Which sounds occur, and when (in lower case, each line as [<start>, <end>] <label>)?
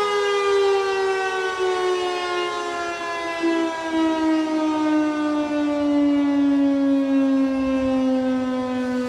[0.00, 9.05] civil defense siren
[0.00, 9.05] wind
[3.92, 4.33] wind noise (microphone)
[7.59, 8.00] wind noise (microphone)
[8.63, 9.05] wind noise (microphone)